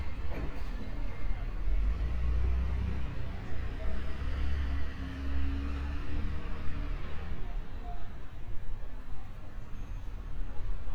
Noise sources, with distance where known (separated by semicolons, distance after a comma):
engine of unclear size, near